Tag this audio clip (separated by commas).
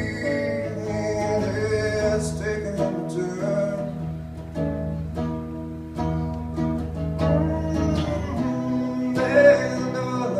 Music